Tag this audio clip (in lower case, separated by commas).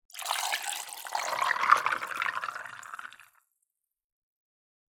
liquid